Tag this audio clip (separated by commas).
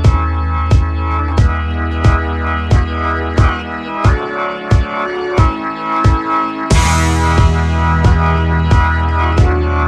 Speech, Music